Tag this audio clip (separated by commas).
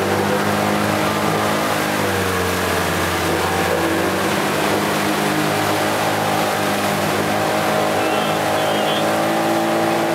Motorboat, Vehicle